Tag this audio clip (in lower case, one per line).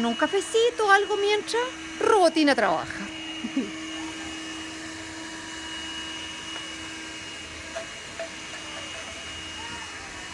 vacuum cleaner cleaning floors